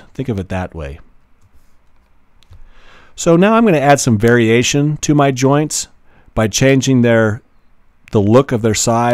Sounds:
Speech

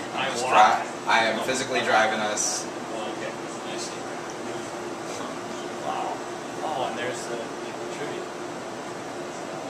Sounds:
Speech

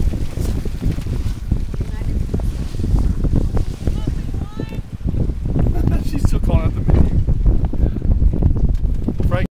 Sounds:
Speech

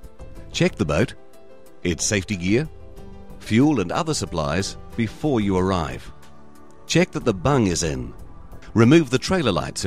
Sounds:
Music, Speech

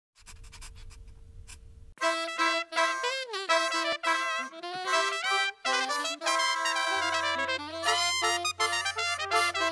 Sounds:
Music

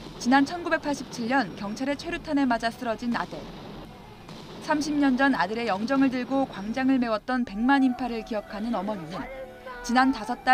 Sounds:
people battle cry

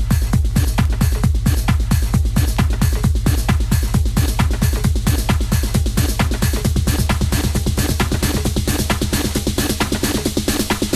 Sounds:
Percussion, Drum

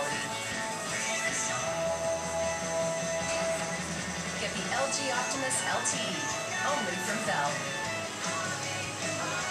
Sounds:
Speech, Music

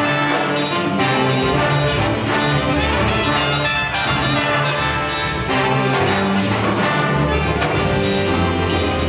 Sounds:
Music

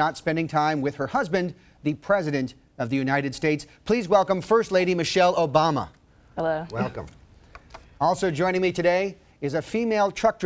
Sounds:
Speech

